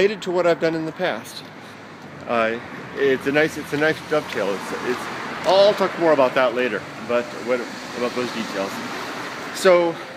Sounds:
speech

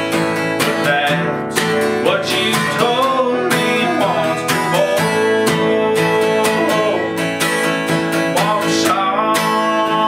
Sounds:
music

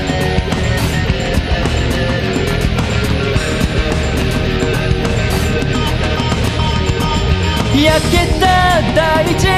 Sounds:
music

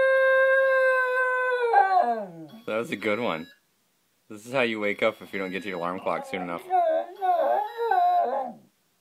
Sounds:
dog howling

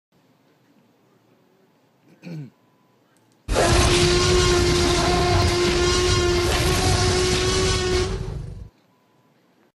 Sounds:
throat clearing

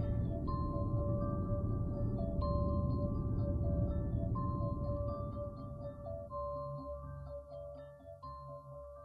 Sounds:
music

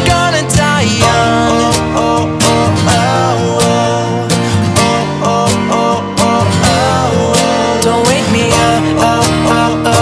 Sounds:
music

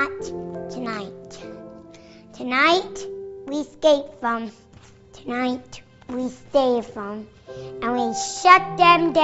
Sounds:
speech, narration

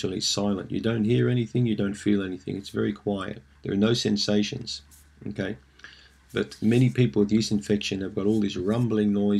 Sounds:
speech

